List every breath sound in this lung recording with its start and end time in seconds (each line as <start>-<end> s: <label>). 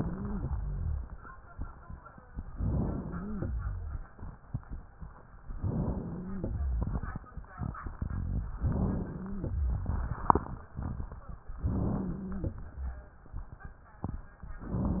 0.00-0.48 s: inhalation
0.00-0.48 s: wheeze
0.53-1.18 s: rhonchi
2.52-3.17 s: inhalation
3.07-4.04 s: wheeze
5.45-6.38 s: inhalation
6.01-6.95 s: wheeze
6.36-7.29 s: exhalation
8.57-9.43 s: inhalation
8.92-9.60 s: wheeze
9.41-10.27 s: exhalation
11.59-12.54 s: inhalation
11.59-12.54 s: wheeze